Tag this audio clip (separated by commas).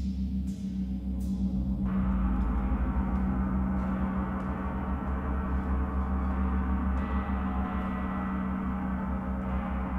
Music